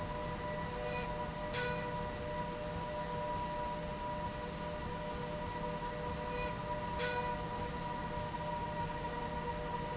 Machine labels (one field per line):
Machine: slide rail